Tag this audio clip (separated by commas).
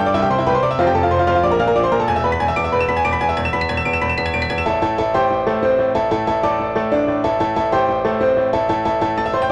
Music